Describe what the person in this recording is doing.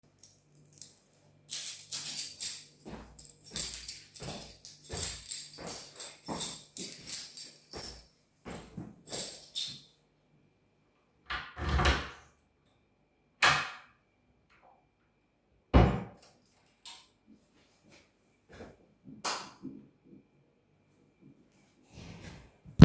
Person walks with a key in hand. Then he stops near the drawer and opens it. Then the personturns the light on.